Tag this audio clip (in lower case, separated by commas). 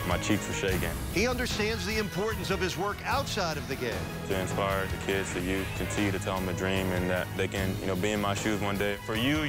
speech, music